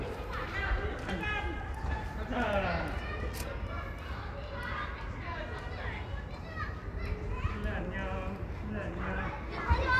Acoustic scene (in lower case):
residential area